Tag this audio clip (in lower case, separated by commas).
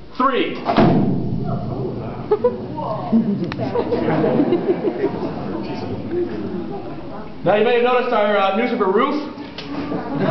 speech